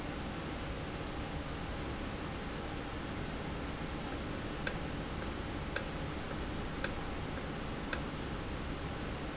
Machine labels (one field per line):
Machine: valve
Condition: normal